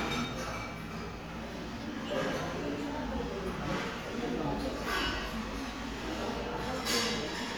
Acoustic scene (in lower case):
restaurant